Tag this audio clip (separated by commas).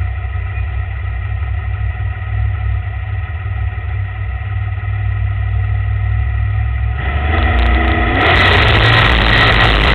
Car, Motor vehicle (road), Vehicle